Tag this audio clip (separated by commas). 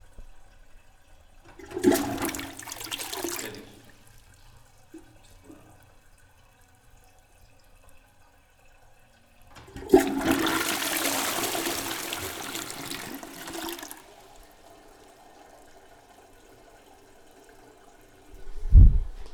Toilet flush, home sounds